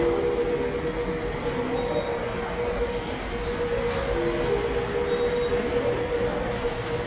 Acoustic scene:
subway station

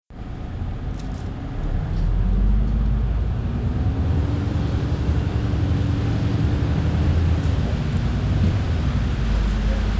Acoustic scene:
bus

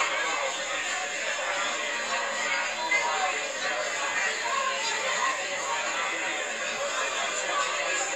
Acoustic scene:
crowded indoor space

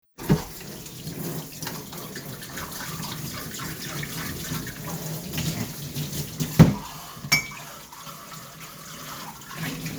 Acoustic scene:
kitchen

